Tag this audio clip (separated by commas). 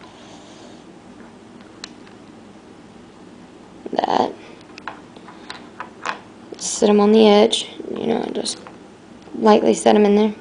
Speech, inside a small room